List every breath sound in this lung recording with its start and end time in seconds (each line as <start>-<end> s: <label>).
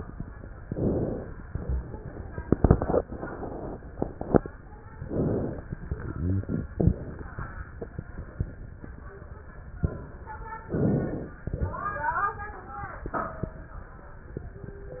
0.61-1.41 s: inhalation
4.95-5.75 s: inhalation
10.66-11.46 s: inhalation